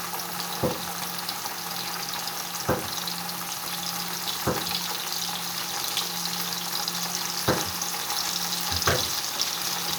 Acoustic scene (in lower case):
kitchen